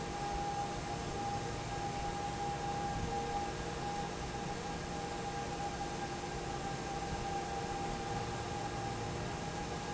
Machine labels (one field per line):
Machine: fan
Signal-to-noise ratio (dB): -6 dB